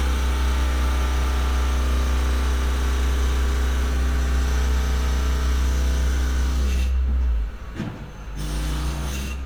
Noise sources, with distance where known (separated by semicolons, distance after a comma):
unidentified impact machinery, near